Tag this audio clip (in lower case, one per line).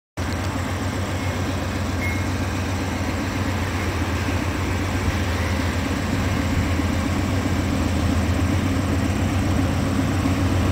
train wagon
train
rail transport